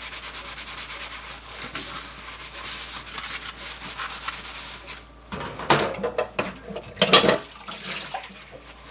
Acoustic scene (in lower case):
kitchen